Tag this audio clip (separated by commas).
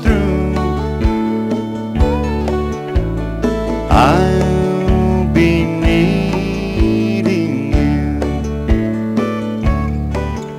Music